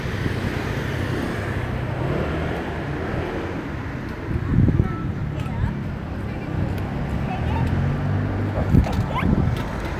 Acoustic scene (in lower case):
street